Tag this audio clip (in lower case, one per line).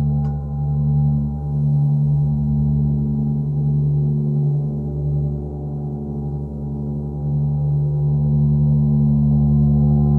gong